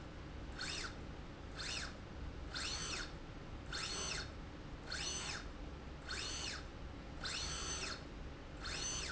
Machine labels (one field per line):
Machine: slide rail